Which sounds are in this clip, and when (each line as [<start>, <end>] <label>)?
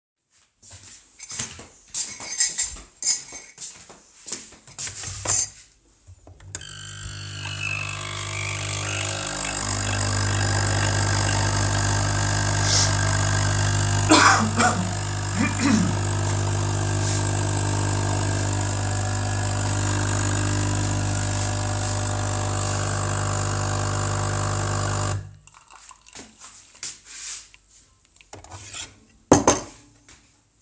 [0.55, 5.61] footsteps
[1.16, 5.91] cutlery and dishes
[6.47, 25.40] coffee machine
[6.70, 29.05] microwave
[26.73, 27.61] footsteps
[28.08, 30.33] cutlery and dishes
[30.08, 30.55] footsteps